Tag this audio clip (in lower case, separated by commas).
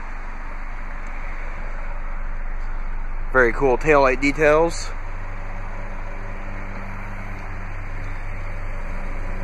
speech, vehicle, car